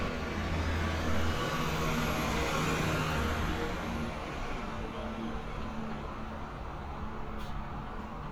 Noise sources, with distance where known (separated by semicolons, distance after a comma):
engine of unclear size